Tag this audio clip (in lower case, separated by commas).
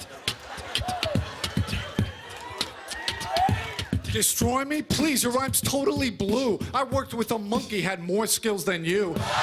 rapping